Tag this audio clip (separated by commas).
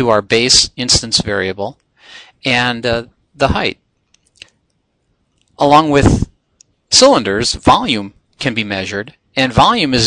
inside a small room, Speech